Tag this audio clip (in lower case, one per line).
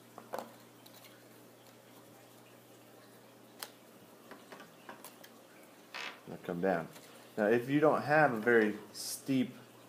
speech